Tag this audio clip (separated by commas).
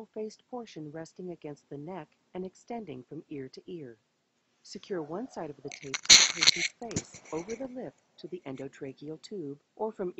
Speech, Narration